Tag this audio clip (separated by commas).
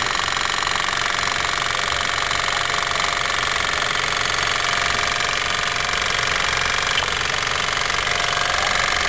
inside a small room, Speech